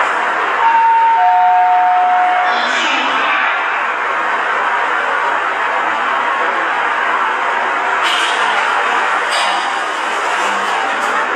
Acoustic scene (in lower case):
elevator